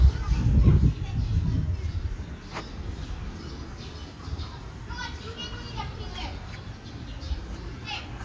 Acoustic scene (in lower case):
park